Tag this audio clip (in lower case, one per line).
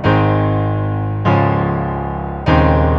music
musical instrument
keyboard (musical)
piano